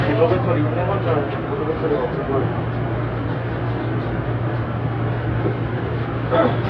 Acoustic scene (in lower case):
subway train